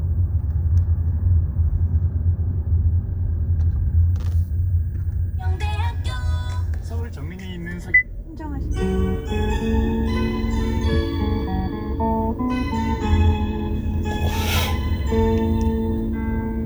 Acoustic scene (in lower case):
car